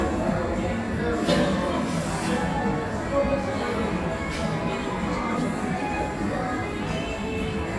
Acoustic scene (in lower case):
cafe